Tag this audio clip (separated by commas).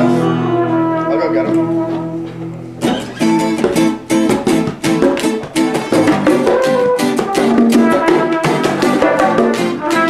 Music, Speech